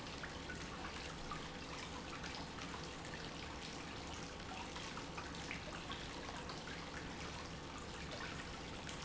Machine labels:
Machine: pump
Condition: normal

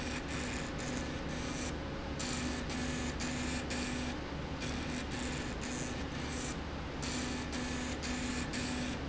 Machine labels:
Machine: slide rail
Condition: abnormal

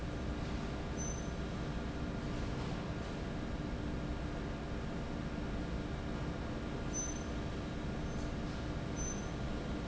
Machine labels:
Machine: fan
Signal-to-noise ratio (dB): -6 dB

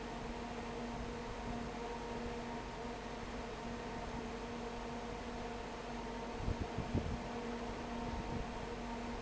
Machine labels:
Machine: fan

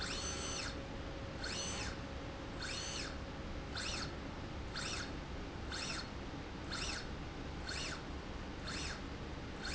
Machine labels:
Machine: slide rail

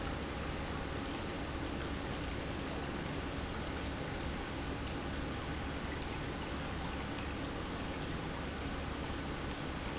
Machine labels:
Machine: pump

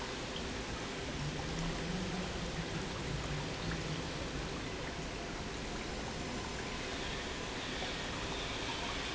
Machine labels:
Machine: pump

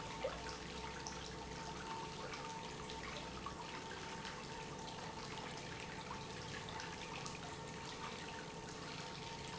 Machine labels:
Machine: pump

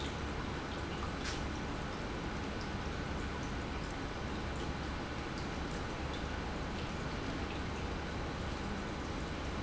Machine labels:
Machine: pump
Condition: normal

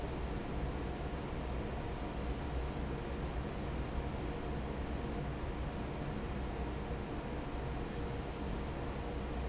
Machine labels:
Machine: fan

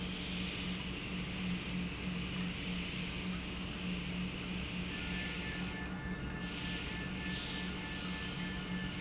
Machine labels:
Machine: pump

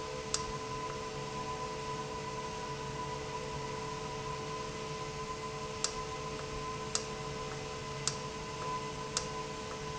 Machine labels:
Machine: valve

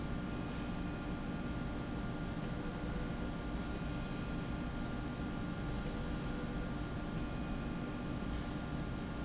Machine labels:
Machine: slide rail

